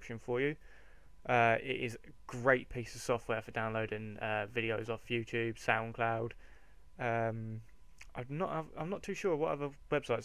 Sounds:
Speech

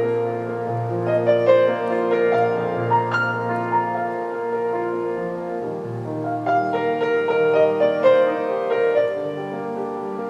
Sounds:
Music

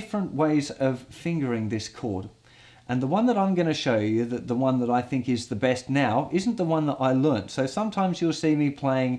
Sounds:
Speech

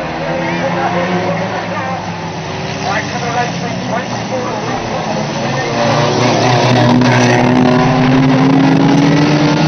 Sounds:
Speech

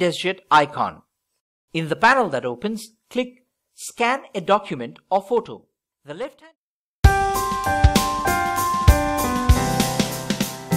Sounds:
Music, Speech

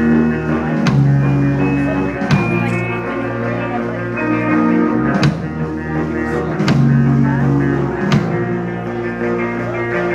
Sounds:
Speech, Music

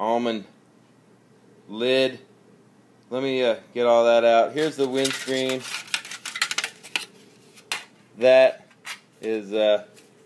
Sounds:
inside a small room, Speech

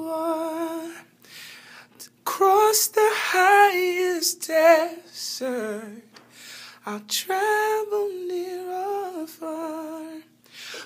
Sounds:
Male singing

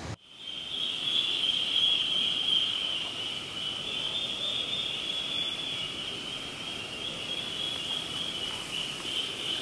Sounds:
Duck

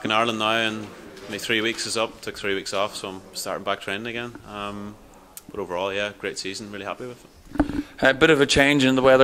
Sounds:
Speech

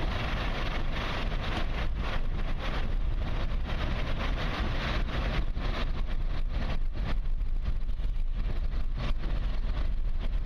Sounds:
Wind

